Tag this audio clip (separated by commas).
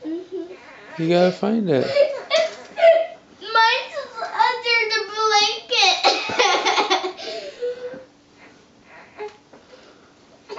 kid speaking, Belly laugh